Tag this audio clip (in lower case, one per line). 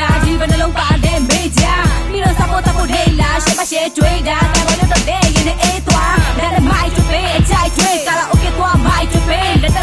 music
soundtrack music